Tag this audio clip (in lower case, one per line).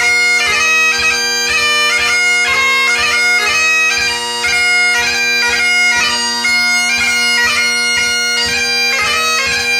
bagpipes
music